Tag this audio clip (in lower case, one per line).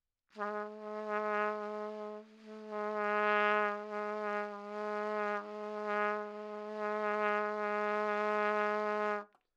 music
trumpet
musical instrument
brass instrument